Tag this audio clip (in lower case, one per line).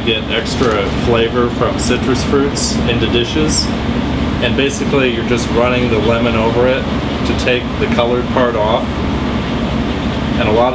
speech